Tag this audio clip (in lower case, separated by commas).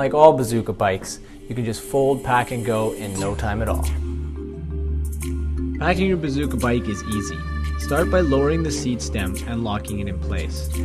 music, speech